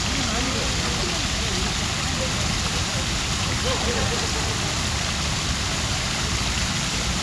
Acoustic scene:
park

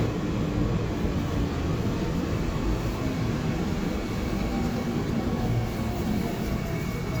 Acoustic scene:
subway train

